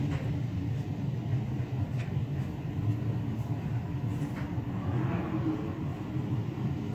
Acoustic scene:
elevator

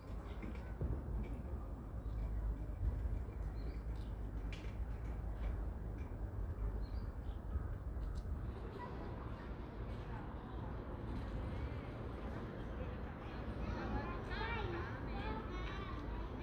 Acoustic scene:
residential area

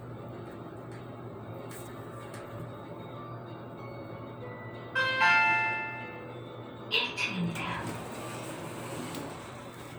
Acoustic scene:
elevator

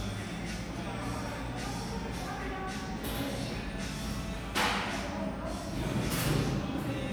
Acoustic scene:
cafe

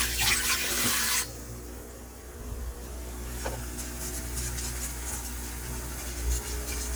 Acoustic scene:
kitchen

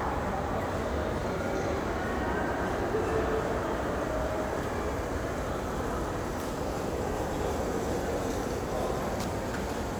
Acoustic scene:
crowded indoor space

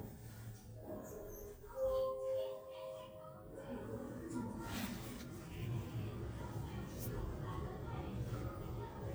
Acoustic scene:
elevator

